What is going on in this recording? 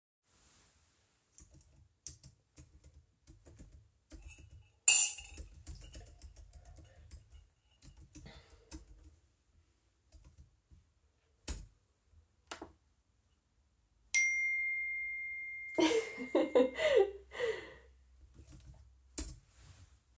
I am working on my laptop. Then I get a notification, which makes me laugh.